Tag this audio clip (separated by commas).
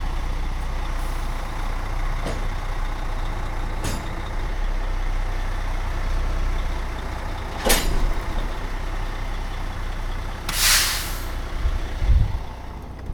Truck, Vehicle, Motor vehicle (road)